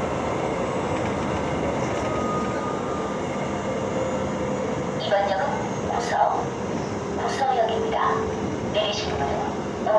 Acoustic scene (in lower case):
subway train